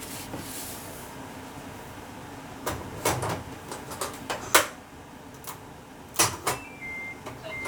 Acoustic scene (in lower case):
kitchen